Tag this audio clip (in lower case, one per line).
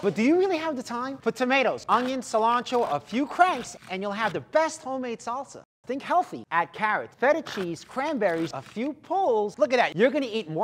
speech